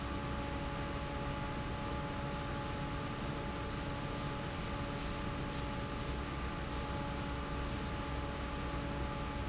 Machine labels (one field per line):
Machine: fan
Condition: normal